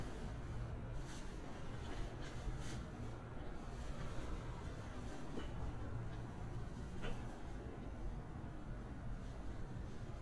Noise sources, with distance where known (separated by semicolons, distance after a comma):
background noise